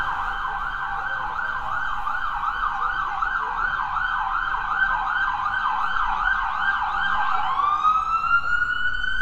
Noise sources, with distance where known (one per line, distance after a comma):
siren, near
person or small group talking